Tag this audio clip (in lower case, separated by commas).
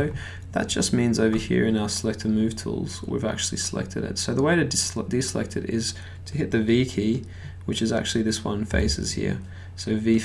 speech